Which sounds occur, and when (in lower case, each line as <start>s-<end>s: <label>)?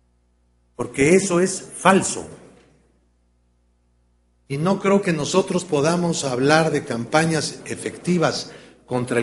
0.0s-9.2s: mechanisms
0.7s-2.3s: male speech
2.3s-2.7s: generic impact sounds
4.5s-8.5s: male speech
8.5s-8.7s: breathing